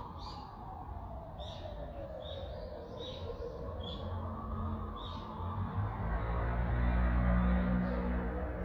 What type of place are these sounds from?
residential area